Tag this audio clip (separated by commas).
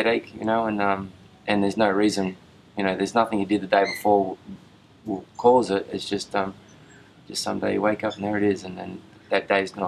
Speech